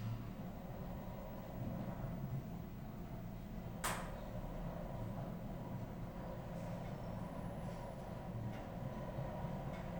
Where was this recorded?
in an elevator